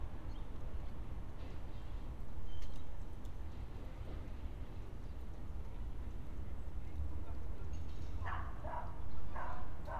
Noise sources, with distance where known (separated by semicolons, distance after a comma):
dog barking or whining, far